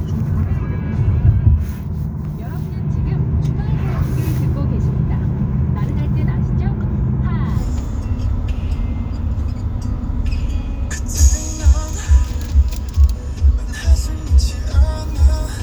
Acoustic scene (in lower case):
car